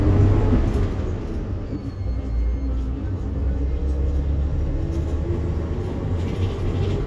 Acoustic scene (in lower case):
bus